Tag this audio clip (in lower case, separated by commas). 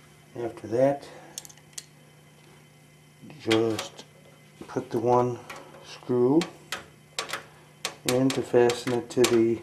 speech, inside a small room